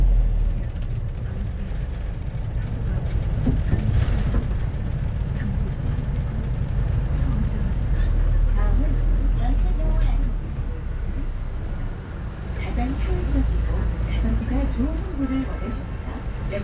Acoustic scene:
bus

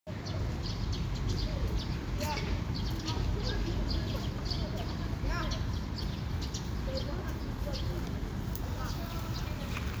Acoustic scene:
park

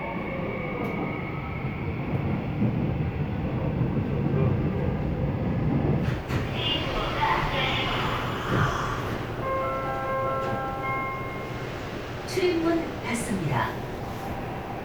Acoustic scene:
subway train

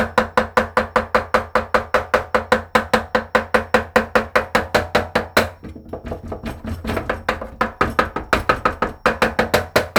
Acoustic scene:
kitchen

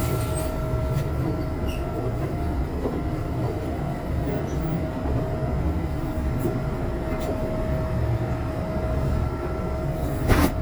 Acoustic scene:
subway train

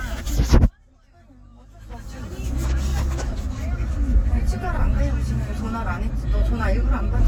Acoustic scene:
car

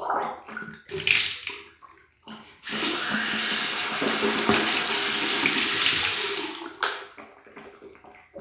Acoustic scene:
restroom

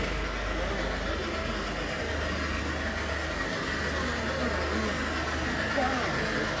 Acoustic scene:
residential area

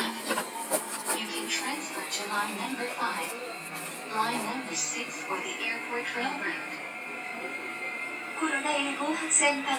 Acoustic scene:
subway train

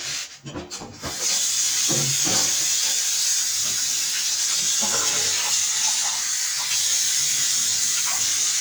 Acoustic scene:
kitchen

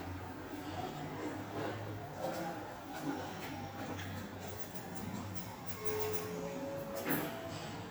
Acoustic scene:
elevator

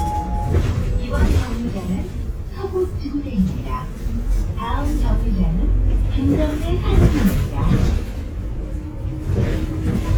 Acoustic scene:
bus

